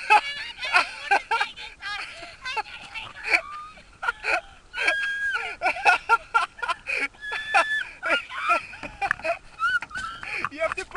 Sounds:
speech

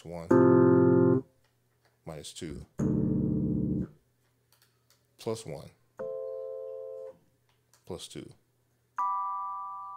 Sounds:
speech
piano
musical instrument
music
keyboard (musical)
synthesizer

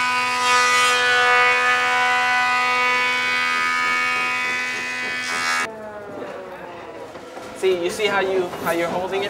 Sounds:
speech

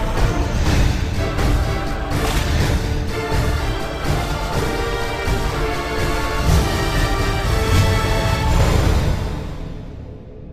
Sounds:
music

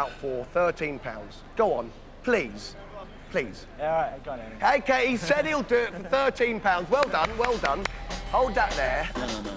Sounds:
speech

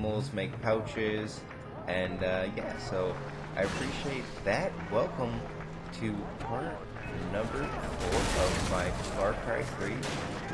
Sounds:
speech

